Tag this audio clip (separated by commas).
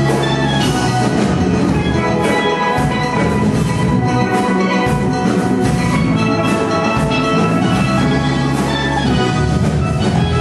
Drum, Steelpan, Music